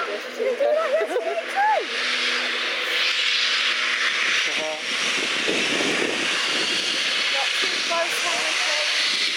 Women talking then a vacuum being used, and wind blowing